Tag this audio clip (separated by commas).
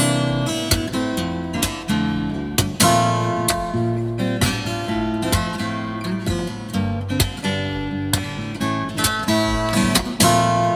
Musical instrument, Strum, Acoustic guitar, Music, Plucked string instrument, Guitar